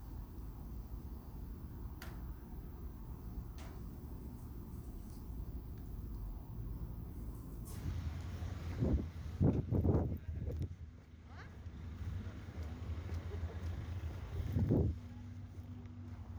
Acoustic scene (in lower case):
residential area